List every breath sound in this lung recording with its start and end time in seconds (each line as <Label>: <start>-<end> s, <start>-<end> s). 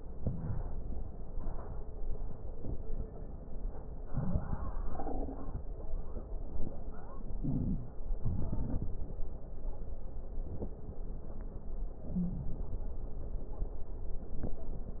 Inhalation: 0.09-1.26 s, 3.99-4.81 s, 7.31-7.94 s, 11.96-13.00 s
Exhalation: 4.79-6.27 s, 7.92-9.59 s
Wheeze: 7.38-7.90 s, 12.10-12.53 s
Crackles: 0.09-1.26 s, 3.97-4.79 s, 4.81-6.25 s, 7.90-9.56 s